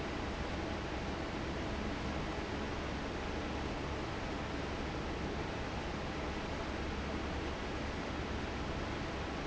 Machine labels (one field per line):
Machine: fan